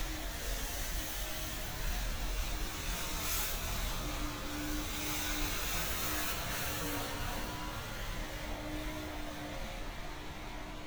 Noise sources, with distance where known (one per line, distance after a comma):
medium-sounding engine